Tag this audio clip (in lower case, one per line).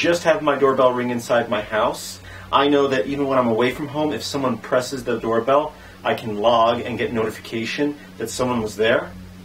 speech